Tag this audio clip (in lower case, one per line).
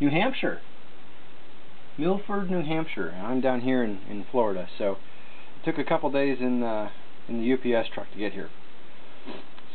speech